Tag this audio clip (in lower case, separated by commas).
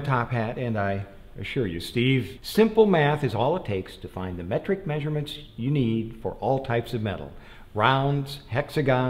speech, inside a large room or hall